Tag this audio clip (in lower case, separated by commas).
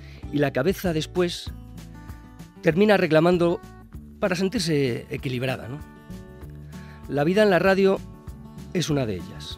music, speech